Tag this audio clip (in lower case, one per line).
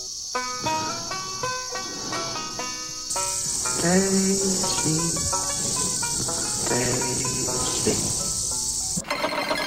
music